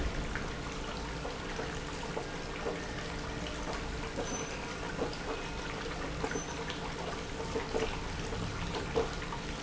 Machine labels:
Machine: pump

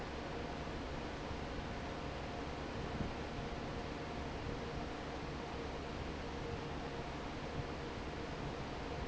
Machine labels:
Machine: fan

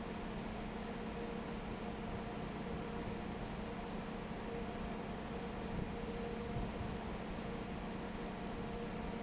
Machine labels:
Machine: fan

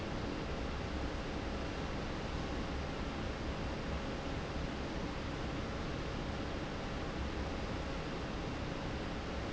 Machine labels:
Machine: fan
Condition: normal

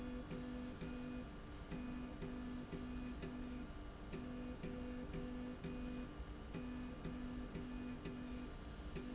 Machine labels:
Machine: slide rail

